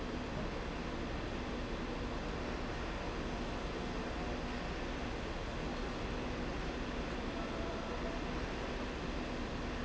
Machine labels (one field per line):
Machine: slide rail